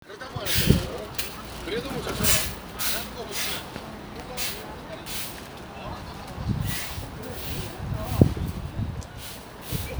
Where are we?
in a residential area